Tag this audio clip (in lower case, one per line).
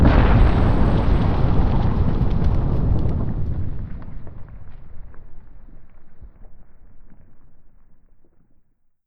boom
explosion